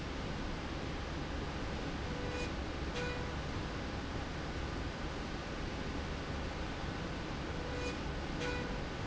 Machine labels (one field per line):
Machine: slide rail